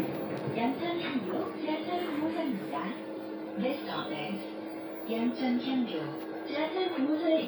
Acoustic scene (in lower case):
bus